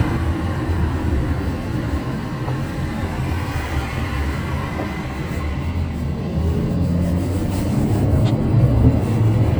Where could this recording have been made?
in a car